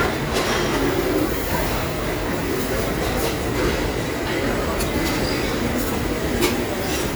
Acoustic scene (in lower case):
restaurant